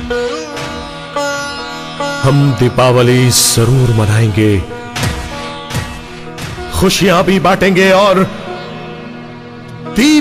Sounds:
music, speech

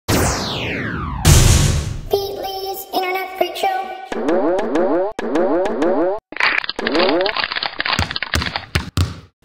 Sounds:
music, speech

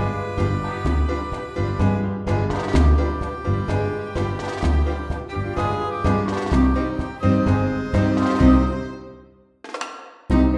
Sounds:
music

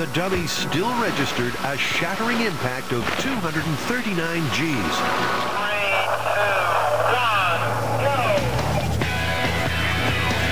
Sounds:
speech, music, radio

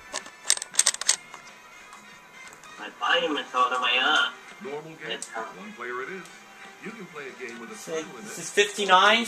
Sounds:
music, speech

